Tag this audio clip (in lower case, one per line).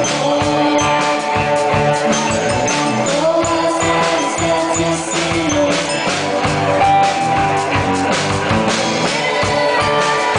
music